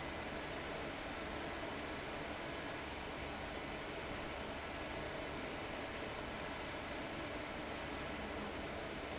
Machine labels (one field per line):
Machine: fan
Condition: abnormal